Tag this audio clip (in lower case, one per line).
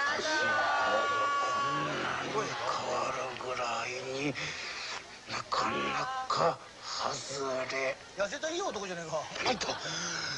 speech